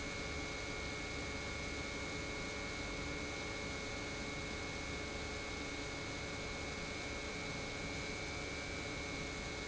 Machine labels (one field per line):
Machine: pump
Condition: normal